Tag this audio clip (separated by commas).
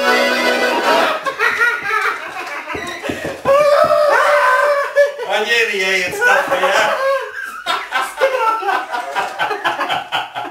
Speech, Music, Musical instrument, Accordion